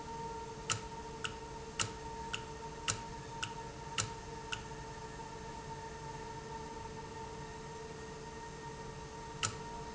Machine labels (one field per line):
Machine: valve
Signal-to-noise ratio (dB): 0 dB